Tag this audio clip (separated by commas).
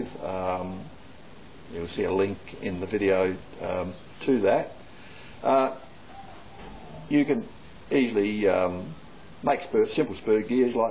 Speech